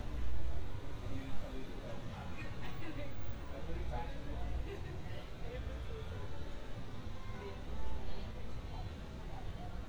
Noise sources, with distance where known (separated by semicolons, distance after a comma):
person or small group talking